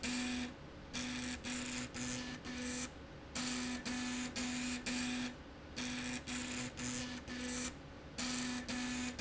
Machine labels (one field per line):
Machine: slide rail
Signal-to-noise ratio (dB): 6 dB